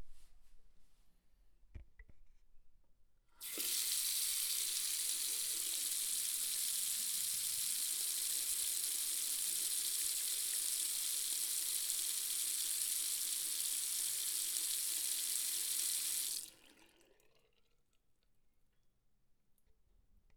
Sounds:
faucet, home sounds, sink (filling or washing)

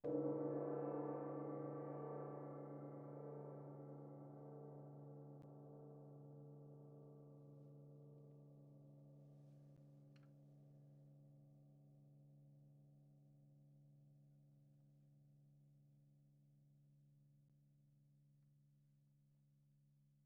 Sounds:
gong, musical instrument, percussion, music

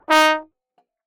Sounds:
music, musical instrument, brass instrument

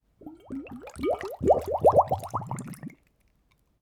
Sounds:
liquid, water

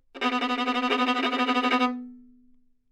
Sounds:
musical instrument, music, bowed string instrument

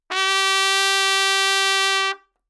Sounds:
music, trumpet, brass instrument, musical instrument

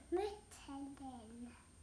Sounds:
child speech, speech, human voice

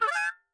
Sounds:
musical instrument, music, harmonica

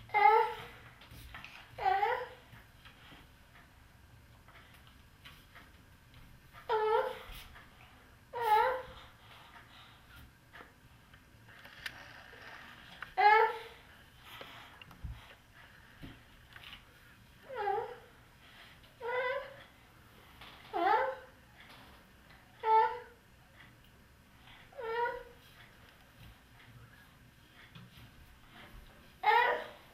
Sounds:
crying, human voice

